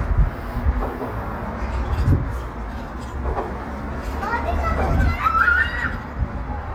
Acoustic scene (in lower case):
residential area